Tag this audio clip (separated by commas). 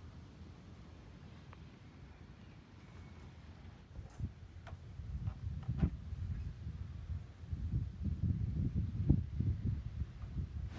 barn swallow calling